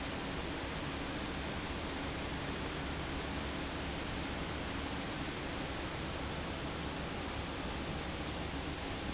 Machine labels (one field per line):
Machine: fan